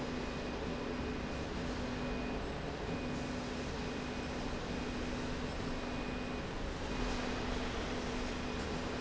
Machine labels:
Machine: slide rail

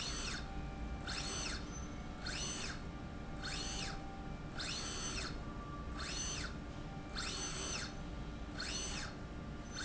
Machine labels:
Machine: slide rail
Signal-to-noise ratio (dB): 0 dB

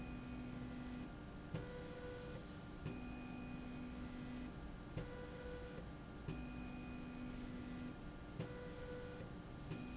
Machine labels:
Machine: slide rail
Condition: normal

